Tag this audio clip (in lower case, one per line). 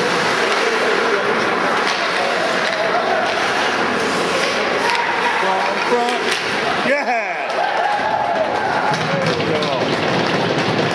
man speaking